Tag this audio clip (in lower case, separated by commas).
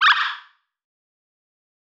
animal